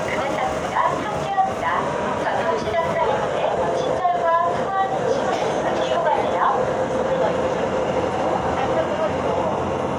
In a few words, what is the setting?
subway train